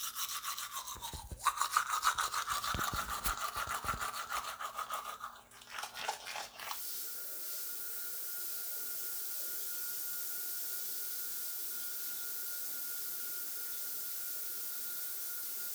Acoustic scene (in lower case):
restroom